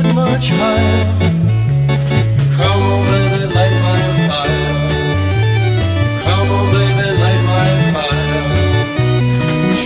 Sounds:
playing electronic organ

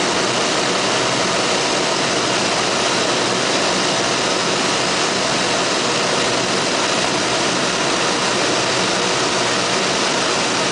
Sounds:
outside, rural or natural
aircraft
vehicle

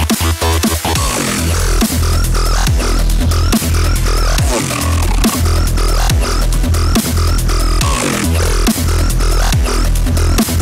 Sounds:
music
dubstep

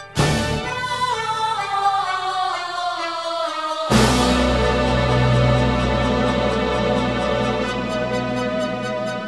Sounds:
music
opera
electronica

